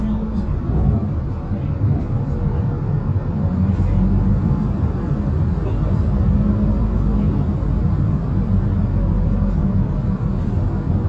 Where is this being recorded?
on a bus